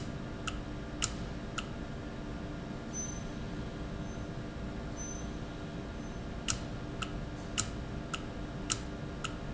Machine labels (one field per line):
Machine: valve